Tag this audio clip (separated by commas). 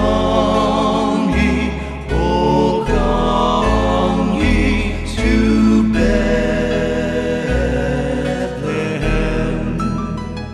Soul music, Music